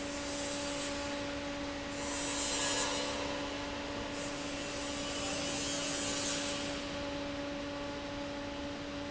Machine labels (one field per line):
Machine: fan